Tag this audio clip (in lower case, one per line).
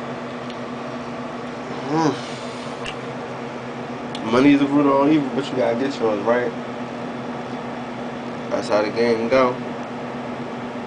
speech